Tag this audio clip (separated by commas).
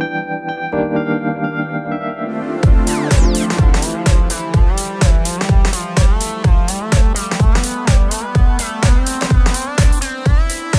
Synthesizer, Electronic dance music, Music, Electronic music